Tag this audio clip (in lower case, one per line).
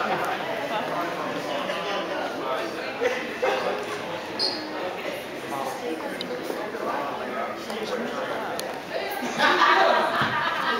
speech